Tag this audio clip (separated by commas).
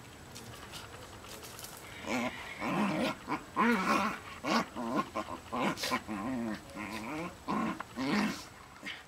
Animal, outside, rural or natural, Dog, Domestic animals